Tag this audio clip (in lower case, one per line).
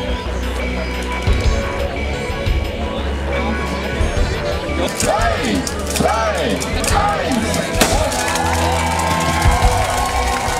speech
music